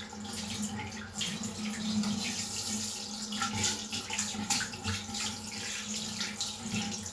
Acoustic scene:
restroom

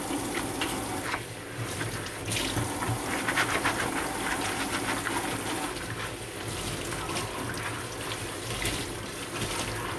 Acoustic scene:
kitchen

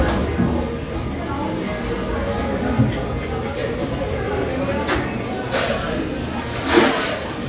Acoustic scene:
restaurant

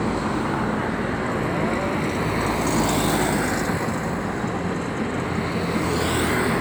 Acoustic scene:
street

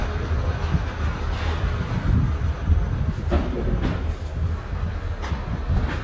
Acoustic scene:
residential area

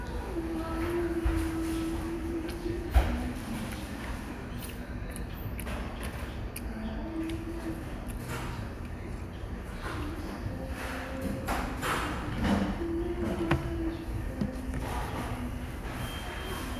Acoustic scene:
restaurant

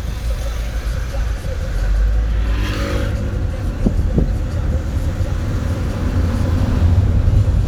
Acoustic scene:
car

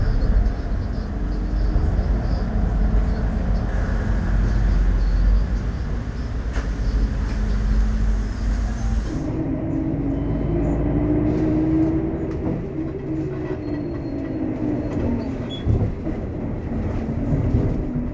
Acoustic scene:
bus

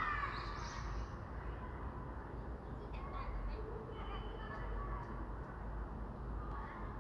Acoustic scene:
residential area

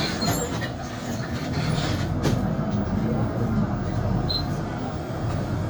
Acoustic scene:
bus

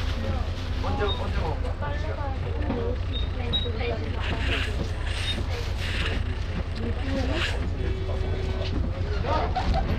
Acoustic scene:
bus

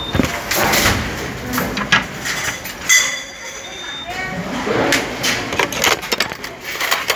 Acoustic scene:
restaurant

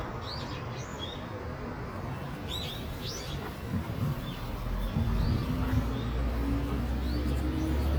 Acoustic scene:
residential area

